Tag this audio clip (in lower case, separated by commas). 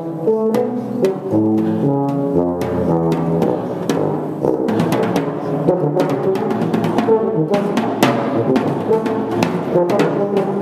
music, musical instrument, drum kit, brass instrument, percussion, drum